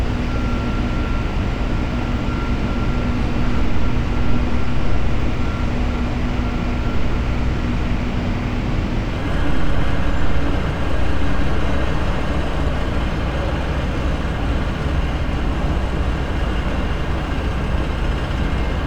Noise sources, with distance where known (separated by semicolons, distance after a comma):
large-sounding engine